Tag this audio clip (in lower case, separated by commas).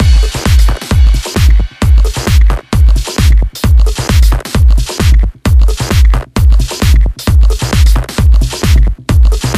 sound effect, music